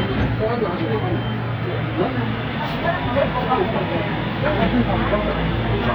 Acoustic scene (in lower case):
subway train